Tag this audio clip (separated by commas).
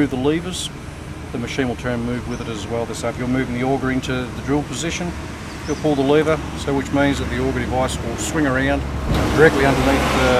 Vehicle, outside, urban or man-made, Speech